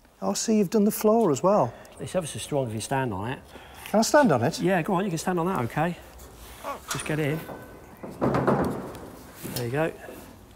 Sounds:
Speech, outside, urban or man-made

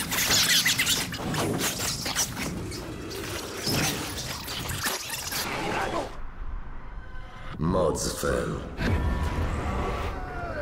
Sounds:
Music, Speech

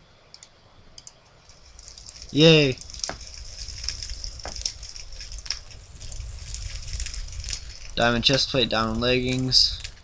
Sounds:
Speech

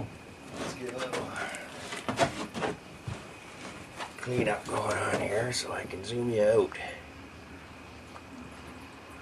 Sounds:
Speech

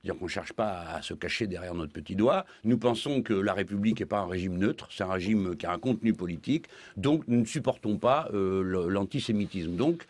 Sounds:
Speech

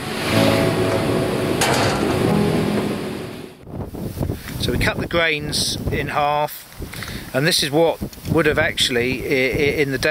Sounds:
Speech, outside, rural or natural, Music

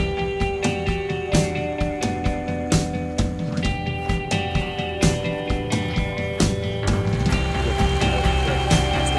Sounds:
Speech, Music

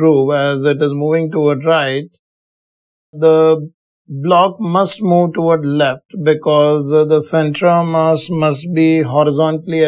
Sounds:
Speech

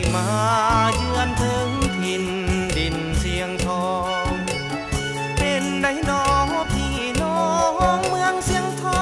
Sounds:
Music

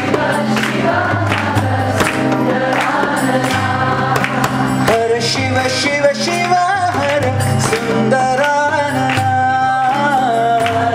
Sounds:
Male singing, Music

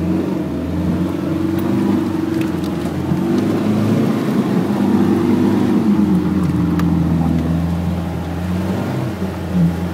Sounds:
Car, Vehicle

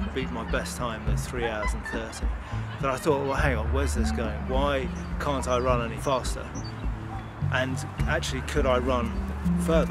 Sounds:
outside, rural or natural, Music, Speech

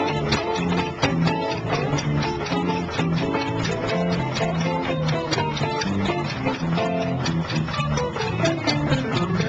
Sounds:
Heavy metal, Happy music, Music

